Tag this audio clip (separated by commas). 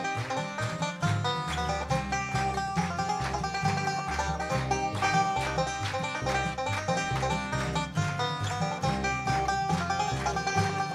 Bluegrass, Country, Music